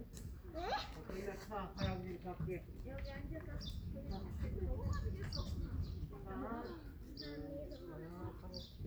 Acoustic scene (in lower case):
park